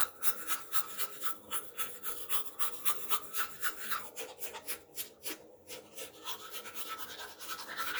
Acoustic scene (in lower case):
restroom